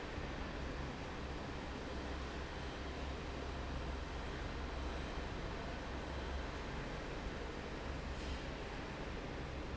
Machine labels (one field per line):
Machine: fan